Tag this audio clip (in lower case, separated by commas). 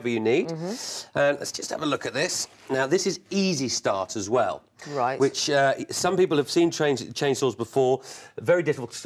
speech